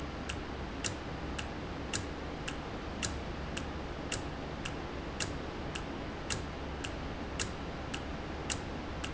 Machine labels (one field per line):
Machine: valve